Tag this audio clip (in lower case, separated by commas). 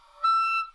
musical instrument, wind instrument, music